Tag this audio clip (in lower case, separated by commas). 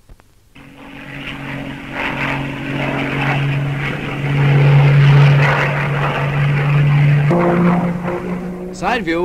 airplane flyby